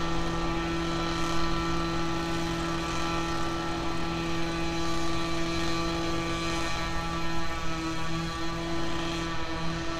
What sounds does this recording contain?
unidentified impact machinery